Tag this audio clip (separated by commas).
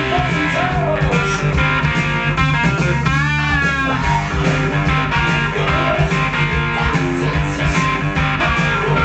Guitar, Musical instrument, Plucked string instrument, Strum, Music